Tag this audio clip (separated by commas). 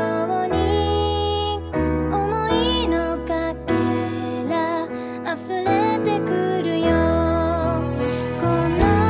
Guitar, Music, Musical instrument